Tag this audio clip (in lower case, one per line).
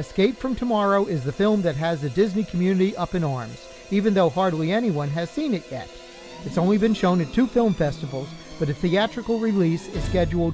speech
music